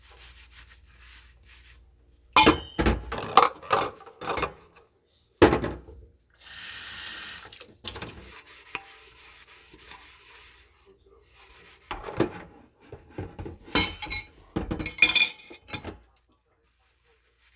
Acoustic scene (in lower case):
kitchen